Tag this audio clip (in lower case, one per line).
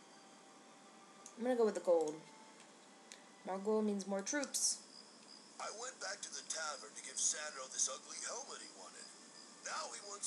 speech